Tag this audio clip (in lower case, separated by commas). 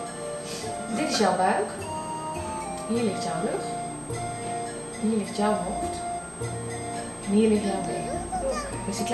speech, music